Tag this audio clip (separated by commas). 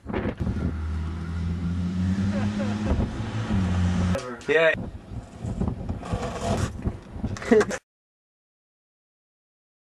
Speech